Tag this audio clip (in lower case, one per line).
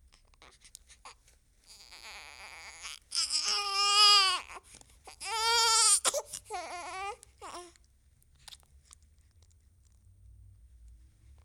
crying
human voice